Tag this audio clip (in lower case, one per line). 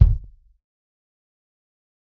music
drum
percussion
bass drum
musical instrument